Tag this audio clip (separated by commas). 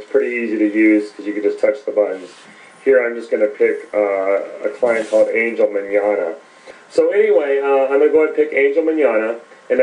Speech